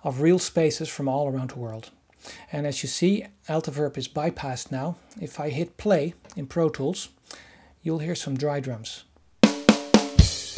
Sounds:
Speech, Music

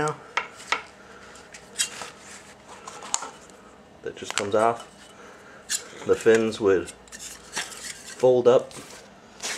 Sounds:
Speech

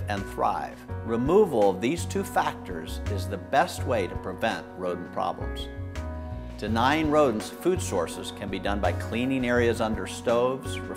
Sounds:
Speech, Music

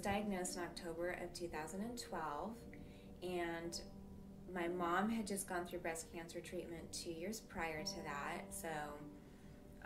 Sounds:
Music, Speech

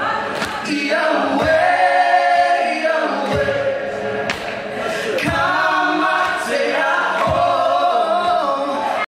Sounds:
Music, Speech

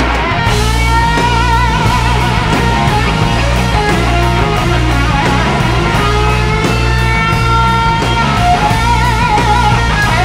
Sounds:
Music

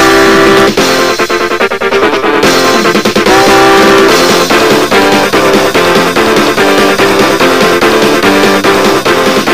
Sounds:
Music

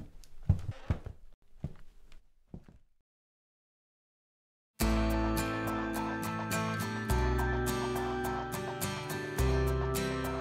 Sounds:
Music, inside a small room

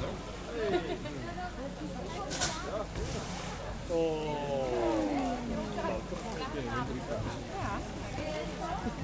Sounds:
Speech

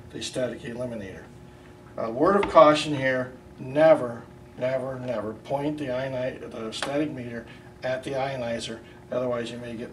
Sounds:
Speech

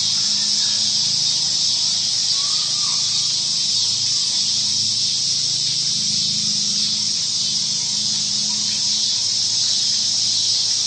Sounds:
Speech

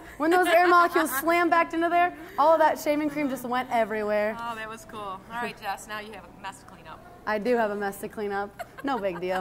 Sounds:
woman speaking

